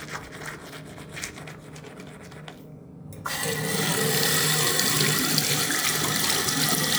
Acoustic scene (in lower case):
restroom